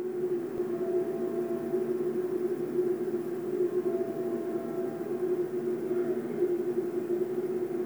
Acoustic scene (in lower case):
subway train